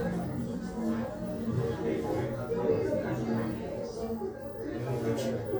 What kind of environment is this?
crowded indoor space